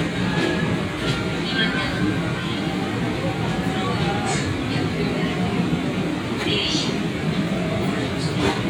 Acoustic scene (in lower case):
subway train